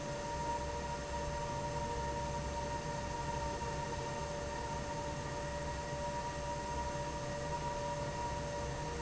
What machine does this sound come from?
fan